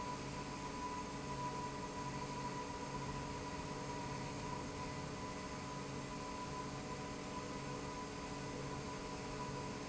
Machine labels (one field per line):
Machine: pump